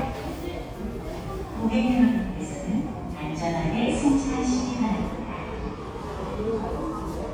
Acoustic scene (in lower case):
subway station